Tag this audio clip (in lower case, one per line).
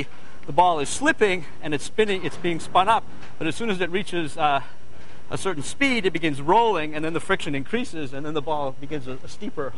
speech